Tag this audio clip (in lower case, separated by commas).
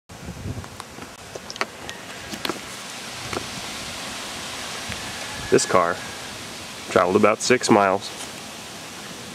waterfall